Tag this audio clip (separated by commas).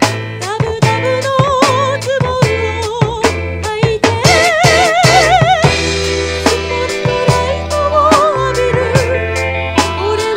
Rock music, Progressive rock, Music, Rhythm and blues